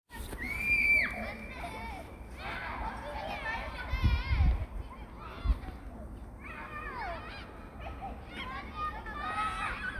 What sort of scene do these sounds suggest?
park